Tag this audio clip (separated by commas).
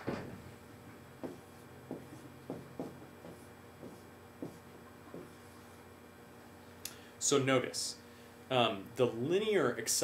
Speech